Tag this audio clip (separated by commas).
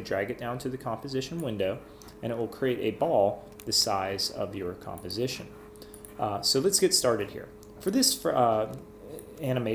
Speech